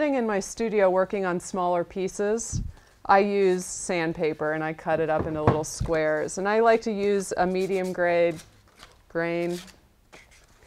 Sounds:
speech

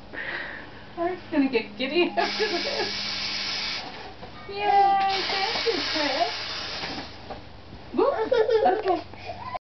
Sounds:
speech

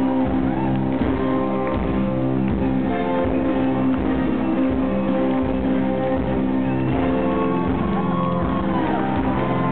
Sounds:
orchestra, music

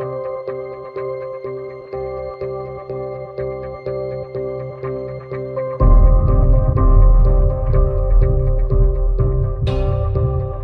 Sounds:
ambient music, music

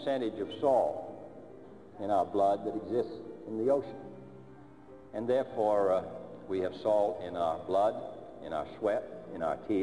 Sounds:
monologue, music, man speaking, speech

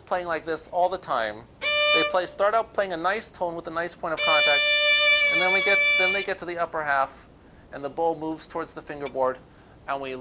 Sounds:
music, musical instrument, speech, fiddle

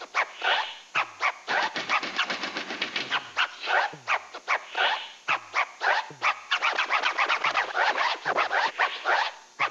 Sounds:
scratching (performance technique)

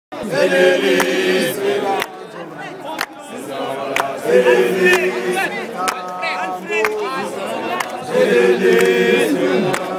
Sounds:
speech, outside, urban or man-made

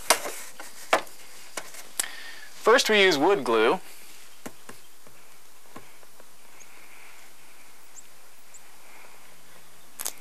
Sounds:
speech

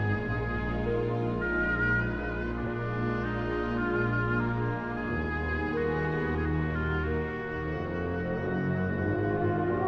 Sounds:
music

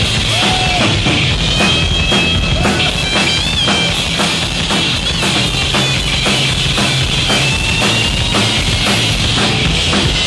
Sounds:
pop music, drum, guitar, musical instrument, music

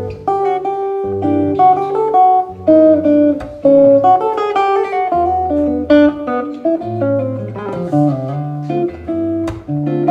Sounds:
music

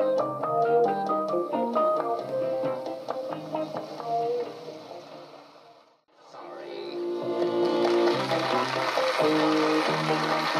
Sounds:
music, theme music

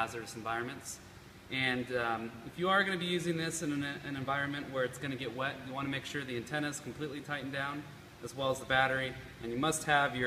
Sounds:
speech

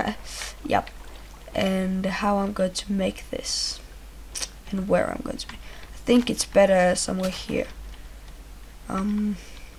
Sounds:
speech

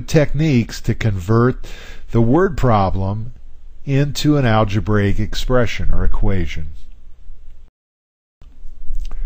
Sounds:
speech

